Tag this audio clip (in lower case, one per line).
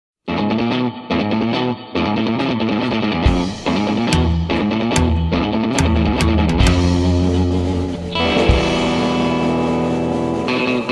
music
outside, rural or natural